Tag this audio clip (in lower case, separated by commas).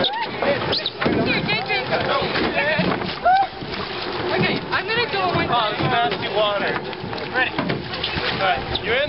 vehicle, rowboat, speech, boat